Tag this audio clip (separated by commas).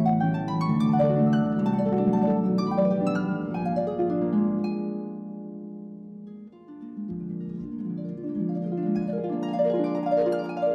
Harp, Music, playing harp